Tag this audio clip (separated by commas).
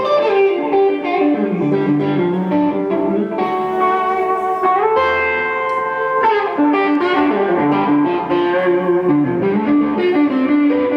Strum, Guitar, Musical instrument, Bass guitar, Music, Plucked string instrument